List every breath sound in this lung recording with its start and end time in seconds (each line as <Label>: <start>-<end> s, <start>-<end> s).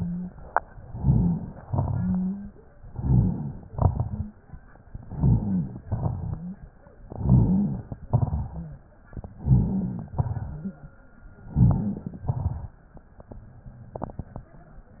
Inhalation: 0.80-1.58 s, 2.81-3.63 s, 5.03-5.79 s, 7.08-7.95 s, 9.34-10.11 s, 11.50-12.28 s
Exhalation: 1.67-2.52 s, 3.68-4.31 s, 5.88-6.64 s, 8.04-8.92 s, 10.19-10.97 s, 12.26-12.94 s
Wheeze: 1.94-2.52 s, 4.02-4.40 s
Rhonchi: 5.03-5.79 s, 5.88-6.64 s, 7.08-7.95 s, 9.34-10.11 s, 10.19-10.97 s, 11.50-12.28 s
Crackles: 0.80-1.58 s, 2.81-3.63 s, 8.04-8.92 s, 12.26-12.94 s